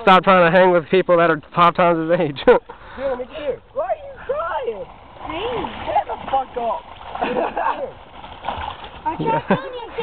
A man speaks and a wind sound, group of boys speaking along with the voice of a girl